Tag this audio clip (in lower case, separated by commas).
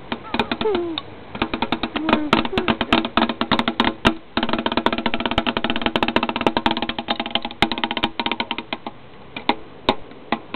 music